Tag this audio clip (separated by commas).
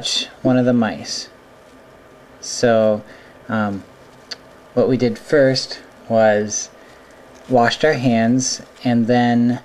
Patter